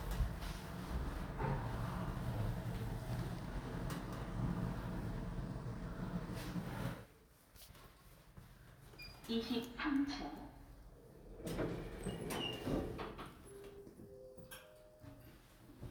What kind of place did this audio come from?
elevator